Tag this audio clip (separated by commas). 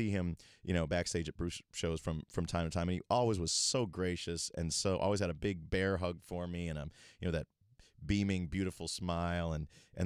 Speech